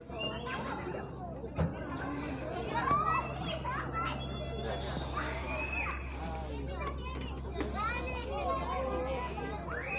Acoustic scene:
park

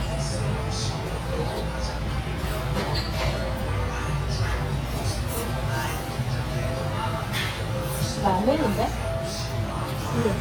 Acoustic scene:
restaurant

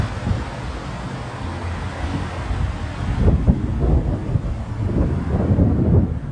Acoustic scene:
street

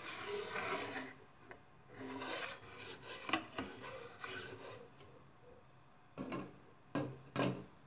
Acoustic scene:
kitchen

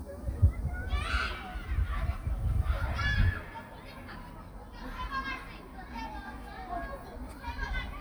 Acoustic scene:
park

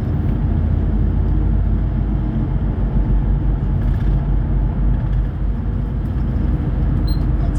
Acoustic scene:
bus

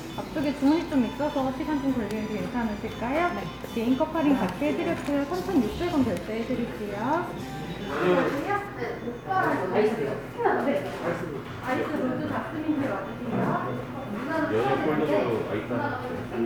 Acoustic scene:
cafe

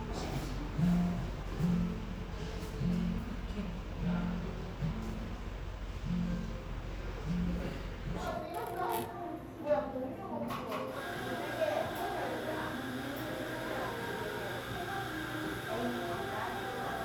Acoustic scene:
cafe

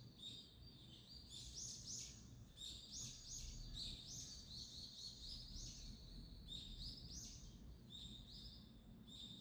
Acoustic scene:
park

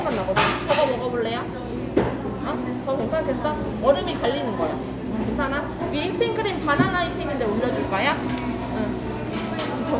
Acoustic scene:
cafe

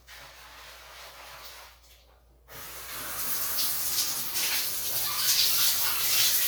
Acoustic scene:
restroom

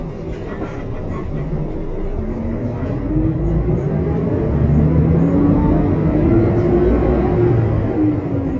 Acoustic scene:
bus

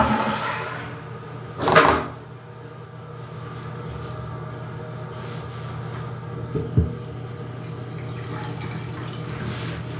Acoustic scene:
restroom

